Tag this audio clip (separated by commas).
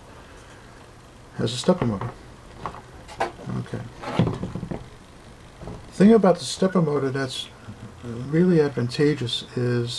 Speech